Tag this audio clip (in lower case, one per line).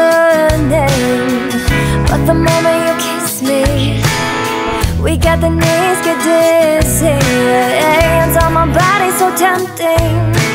music